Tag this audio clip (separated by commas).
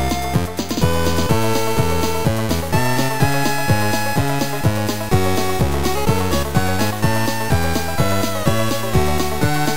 Music, Soundtrack music